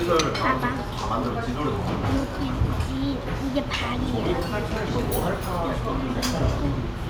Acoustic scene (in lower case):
restaurant